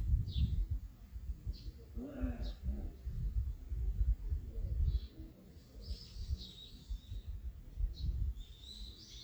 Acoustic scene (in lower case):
park